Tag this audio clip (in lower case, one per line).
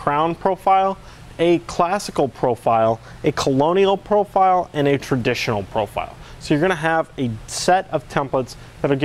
speech